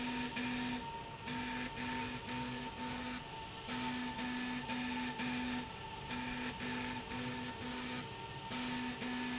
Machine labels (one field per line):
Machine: slide rail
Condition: abnormal